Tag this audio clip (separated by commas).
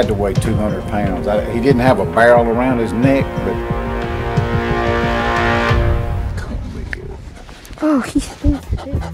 pets, Dog, Animal, Speech, Music